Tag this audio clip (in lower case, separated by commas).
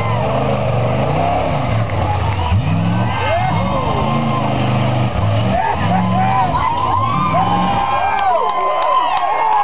speech